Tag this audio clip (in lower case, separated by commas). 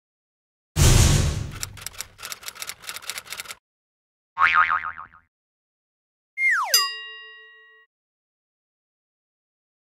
boing